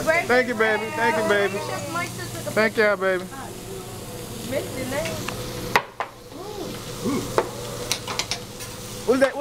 An adult male speaks, an adult female speaks, and sizzling and tapping occur